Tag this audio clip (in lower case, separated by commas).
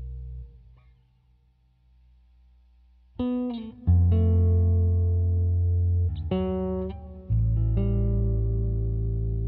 effects unit, music